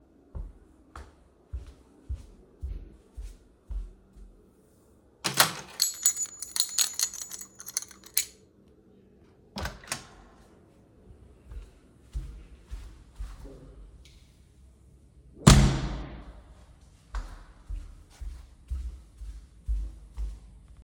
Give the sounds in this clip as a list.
footsteps, door, keys